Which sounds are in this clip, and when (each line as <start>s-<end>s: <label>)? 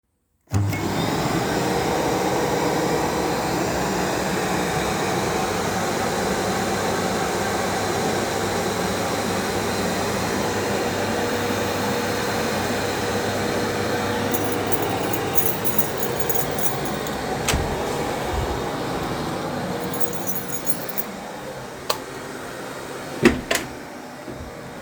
0.5s-24.8s: vacuum cleaner
14.3s-17.1s: keys
17.4s-17.8s: door
19.9s-21.1s: keys
21.8s-22.0s: light switch
23.2s-23.8s: door